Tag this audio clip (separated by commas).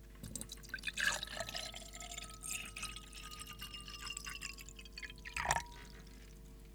Glass, Liquid, dribble, Fill (with liquid), Pour